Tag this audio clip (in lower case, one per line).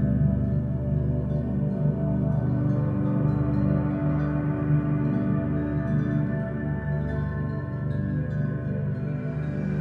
music